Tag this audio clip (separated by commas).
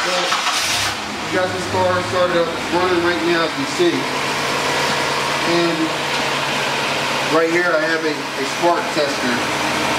Car, Engine, Vehicle, Speech